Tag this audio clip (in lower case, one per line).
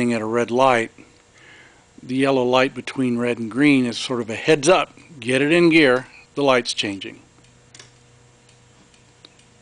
speech